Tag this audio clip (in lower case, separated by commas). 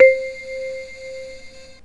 music, musical instrument, keyboard (musical)